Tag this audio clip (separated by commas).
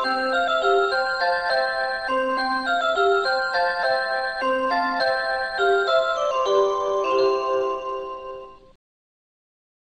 Tick-tock